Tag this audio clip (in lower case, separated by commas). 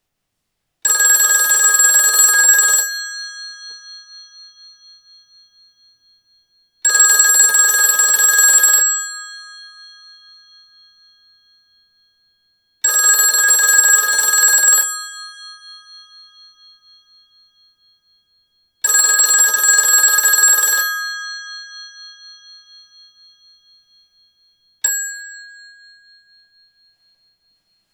alarm, telephone